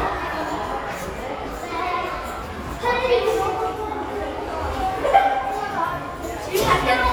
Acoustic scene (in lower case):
crowded indoor space